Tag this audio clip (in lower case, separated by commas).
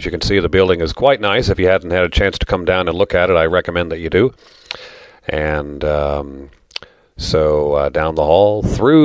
speech